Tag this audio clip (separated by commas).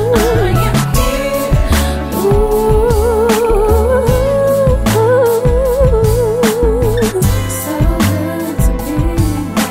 Music